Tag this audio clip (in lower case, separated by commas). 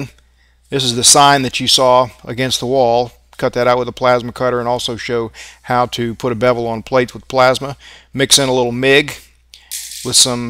arc welding